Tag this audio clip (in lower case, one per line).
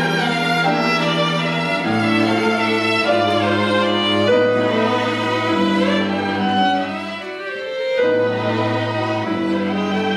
violin
music
musical instrument